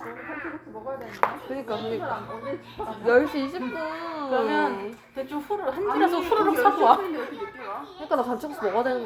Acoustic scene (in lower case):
crowded indoor space